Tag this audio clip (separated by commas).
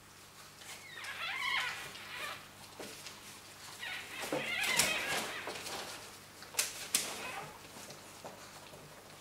pets, inside a small room